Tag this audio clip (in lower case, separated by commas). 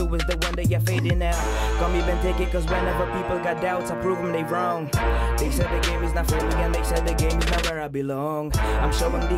music